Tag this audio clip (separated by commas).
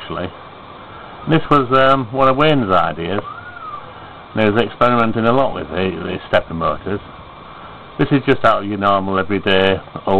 Speech